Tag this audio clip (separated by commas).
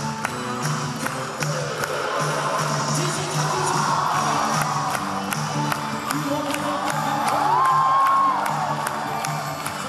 rope skipping